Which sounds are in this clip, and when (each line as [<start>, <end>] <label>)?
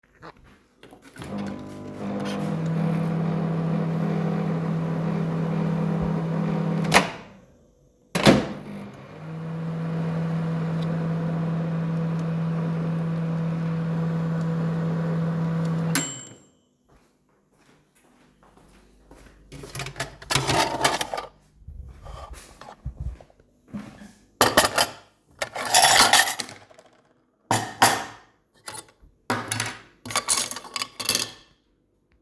[0.78, 7.37] microwave
[7.99, 16.41] microwave
[16.49, 19.53] footsteps
[19.41, 21.38] cutlery and dishes
[24.39, 26.85] cutlery and dishes
[27.40, 31.51] cutlery and dishes